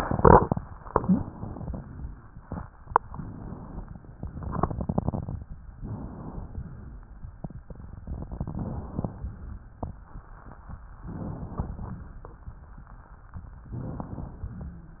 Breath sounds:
Inhalation: 0.84-1.84 s, 5.81-6.81 s, 8.06-9.07 s, 11.10-12.11 s, 13.74-14.74 s
Wheeze: 0.95-1.24 s

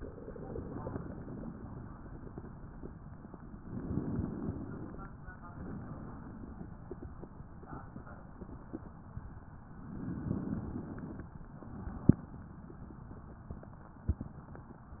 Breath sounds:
Inhalation: 3.58-5.10 s, 9.75-11.28 s
Exhalation: 0.00-1.50 s, 5.41-6.79 s, 11.46-12.50 s

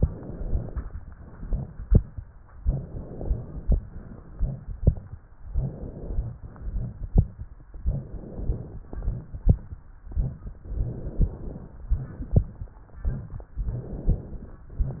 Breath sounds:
Inhalation: 0.00-0.92 s, 2.63-3.76 s, 5.53-6.35 s, 7.76-8.79 s, 10.66-11.84 s, 13.61-14.64 s
Exhalation: 1.08-2.21 s, 3.80-5.02 s, 6.35-7.38 s, 8.79-9.83 s, 11.84-12.81 s, 14.64-15.00 s

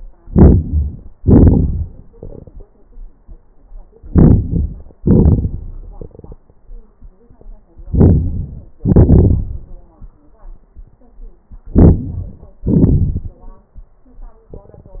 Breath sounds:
Inhalation: 4.08-4.96 s, 7.86-8.74 s, 11.65-12.54 s
Exhalation: 1.17-2.02 s, 4.97-5.85 s, 8.77-9.84 s, 12.53-13.42 s

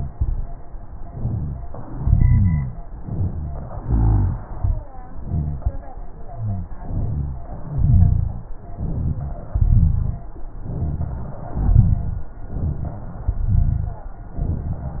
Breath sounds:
Inhalation: 2.92-3.85 s, 6.81-7.51 s, 8.79-9.49 s, 10.76-11.52 s, 12.60-13.36 s
Exhalation: 1.90-2.83 s, 3.83-4.46 s, 7.74-8.45 s, 9.54-10.25 s, 11.59-12.35 s, 13.41-14.06 s
Rhonchi: 1.90-2.83 s, 3.02-3.70 s, 3.83-4.46 s, 6.81-7.51 s, 7.74-8.45 s, 8.79-9.49 s, 9.54-10.25 s, 10.76-11.52 s, 11.59-12.35 s, 12.60-13.36 s, 13.41-14.06 s

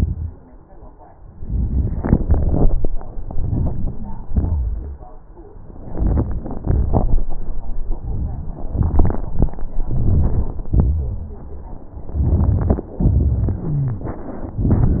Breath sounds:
Inhalation: 3.32-4.02 s, 5.95-6.57 s, 9.94-10.49 s
Exhalation: 4.36-4.89 s, 6.69-7.16 s, 10.71-11.23 s

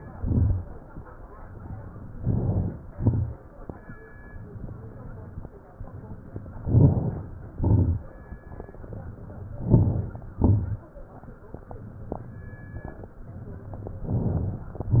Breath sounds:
Inhalation: 2.10-2.81 s, 6.59-7.40 s, 9.52-10.34 s, 14.02-14.83 s
Exhalation: 0.00-0.66 s, 2.82-3.54 s, 7.52-8.34 s, 10.34-11.15 s, 14.92-15.00 s
Crackles: 0.00-0.66 s, 2.10-2.81 s, 2.82-3.54 s, 6.59-7.40 s, 7.52-8.34 s, 9.52-10.34 s, 10.36-11.18 s, 14.02-14.83 s, 14.92-15.00 s

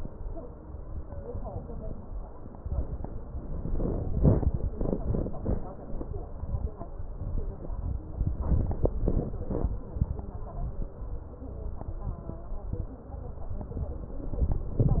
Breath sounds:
Inhalation: 3.31-4.07 s, 8.35-8.92 s, 14.24-15.00 s
Exhalation: 4.11-5.73 s, 8.90-9.85 s
Crackles: 3.31-4.07 s, 4.11-4.72 s, 8.31-8.87 s, 8.90-9.85 s, 14.24-15.00 s

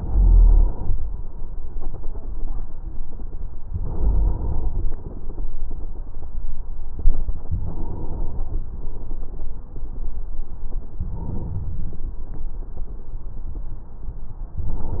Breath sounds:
Inhalation: 0.00-1.19 s, 3.66-4.85 s, 7.47-8.67 s, 10.97-12.16 s, 14.56-15.00 s

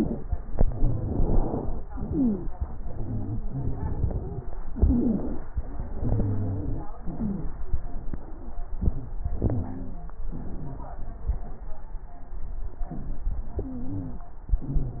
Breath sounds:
Inhalation: 0.00-0.30 s, 1.89-2.48 s, 4.73-5.47 s, 7.04-7.62 s, 9.43-10.15 s, 14.55-15.00 s
Exhalation: 0.54-1.80 s, 2.87-4.39 s, 5.61-6.89 s, 7.67-9.15 s, 10.29-11.63 s, 12.91-14.25 s
Wheeze: 0.00-0.30 s, 0.54-1.80 s, 1.89-2.48 s, 2.87-4.39 s, 4.73-5.47 s, 5.61-6.89 s, 7.04-7.62 s, 9.43-10.15 s, 13.64-14.25 s, 14.55-15.00 s
Crackles: 7.67-9.15 s, 10.29-11.63 s

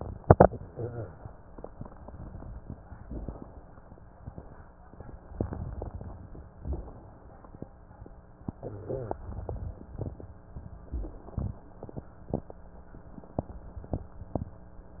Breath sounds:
Inhalation: 2.80-3.79 s, 5.21-6.52 s, 8.40-10.86 s
Exhalation: 6.53-7.46 s, 10.82-12.09 s
Wheeze: 0.68-1.10 s, 8.54-9.26 s
Crackles: 5.21-6.52 s, 6.53-7.46 s, 10.82-12.09 s

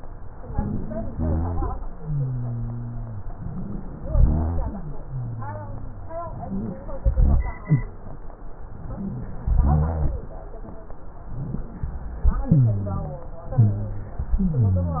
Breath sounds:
Inhalation: 0.51-1.08 s, 3.34-4.08 s, 6.43-6.85 s, 8.98-9.49 s, 12.47-13.28 s, 14.36-15.00 s
Exhalation: 1.08-1.75 s, 4.08-4.69 s, 7.02-7.95 s, 9.62-10.13 s, 13.55-14.25 s
Wheeze: 0.51-1.08 s, 3.34-4.08 s, 6.43-6.85 s, 7.65-7.91 s, 8.98-9.49 s, 12.45-13.31 s, 13.55-14.25 s, 14.36-15.00 s
Rhonchi: 1.08-1.75 s, 1.99-3.26 s, 4.08-4.69 s, 5.07-6.34 s, 7.02-7.59 s, 9.62-10.13 s

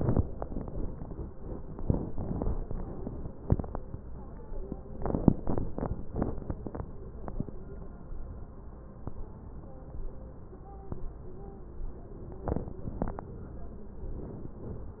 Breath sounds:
Inhalation: 14.04-14.57 s
Exhalation: 14.57-15.00 s

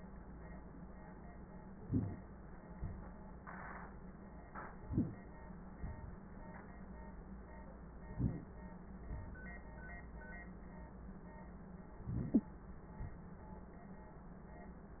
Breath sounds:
Inhalation: 1.84-2.20 s, 4.86-5.31 s, 8.08-8.54 s, 12.03-12.62 s
Exhalation: 2.73-3.27 s, 5.77-6.22 s, 9.05-9.51 s
Wheeze: 12.33-12.41 s

